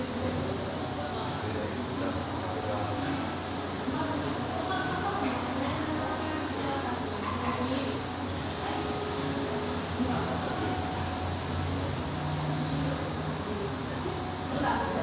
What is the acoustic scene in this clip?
cafe